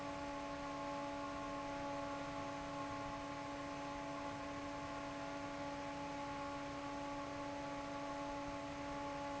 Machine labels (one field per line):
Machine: fan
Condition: normal